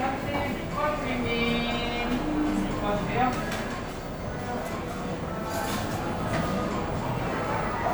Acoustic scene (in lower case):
cafe